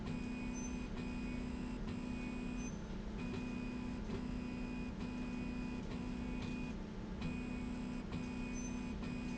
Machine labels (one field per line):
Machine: slide rail